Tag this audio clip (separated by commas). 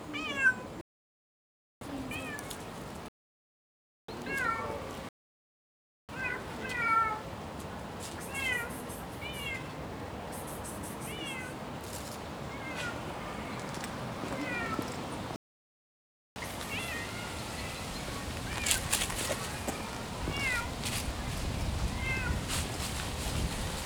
Meow, Cat, pets, Animal